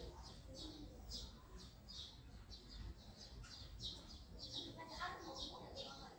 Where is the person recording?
in a residential area